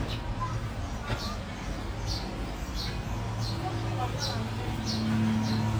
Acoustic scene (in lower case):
residential area